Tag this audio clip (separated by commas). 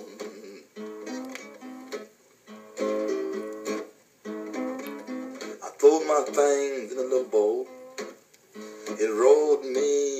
Music